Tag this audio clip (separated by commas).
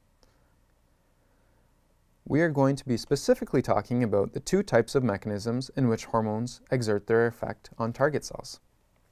Speech